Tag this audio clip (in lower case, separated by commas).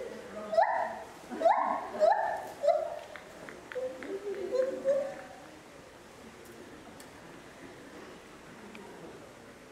gibbon howling